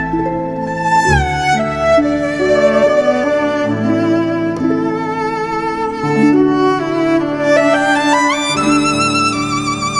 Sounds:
Music

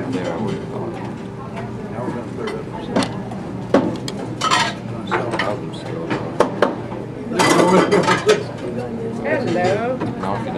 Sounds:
inside a public space, Speech

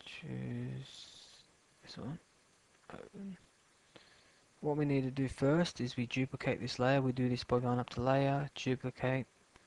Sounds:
Speech

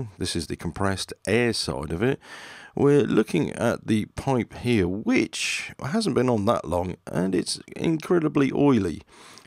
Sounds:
Speech

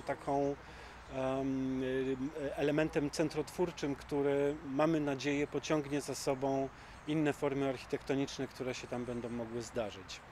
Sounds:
Speech

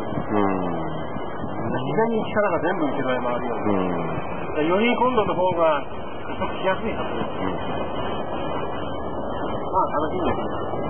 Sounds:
Speech

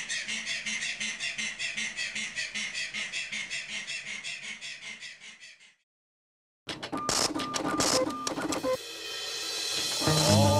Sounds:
Music, Animal

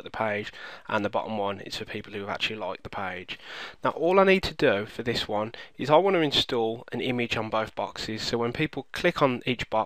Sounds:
Speech

